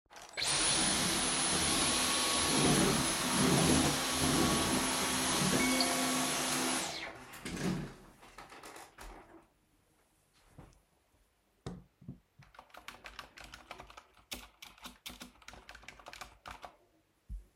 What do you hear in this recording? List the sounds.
vacuum cleaner, phone ringing, keyboard typing